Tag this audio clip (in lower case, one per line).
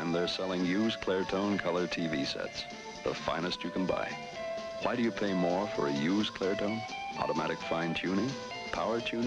music
speech